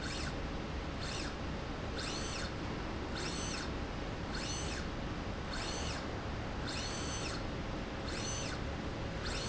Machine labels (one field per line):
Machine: slide rail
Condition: normal